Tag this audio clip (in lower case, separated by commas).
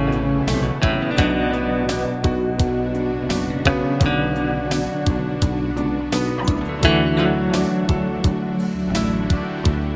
music